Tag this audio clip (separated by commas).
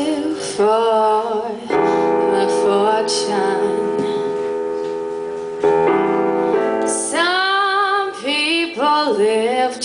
Music